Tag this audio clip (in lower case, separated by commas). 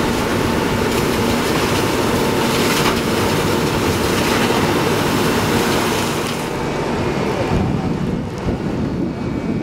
wind, wind noise (microphone)